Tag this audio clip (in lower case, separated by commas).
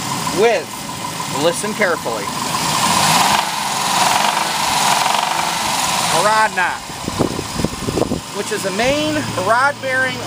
engine knocking, engine, speech